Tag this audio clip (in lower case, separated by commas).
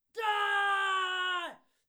screaming, shout, human voice